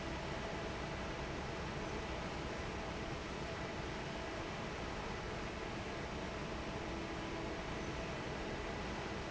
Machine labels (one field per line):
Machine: fan